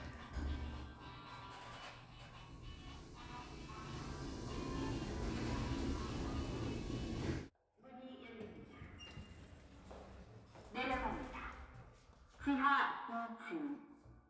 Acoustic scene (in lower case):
elevator